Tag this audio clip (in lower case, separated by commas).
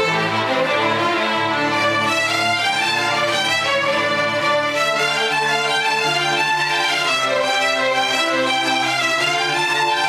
violin, musical instrument, music